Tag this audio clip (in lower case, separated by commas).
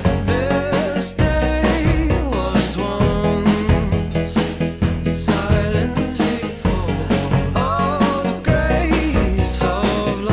music, independent music